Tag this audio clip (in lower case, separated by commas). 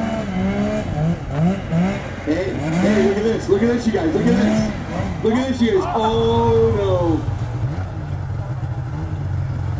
driving snowmobile